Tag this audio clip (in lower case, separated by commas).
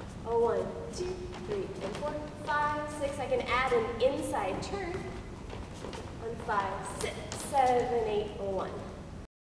speech